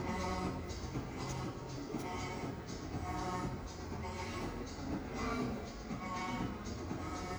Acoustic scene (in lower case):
cafe